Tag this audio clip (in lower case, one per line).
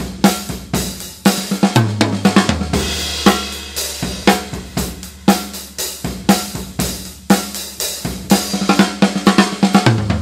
cymbal
hi-hat
snare drum
music
bass drum